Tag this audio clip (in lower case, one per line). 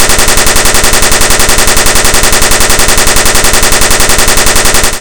explosion
gunshot